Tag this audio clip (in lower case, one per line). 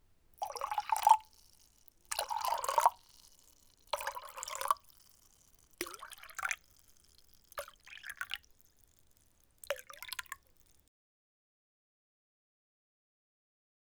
liquid